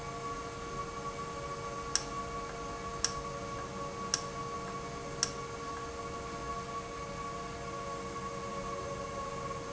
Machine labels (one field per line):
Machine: valve